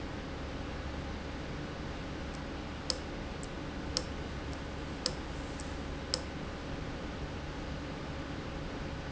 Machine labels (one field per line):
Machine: valve